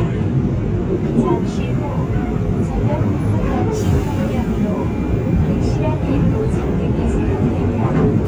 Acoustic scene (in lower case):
subway train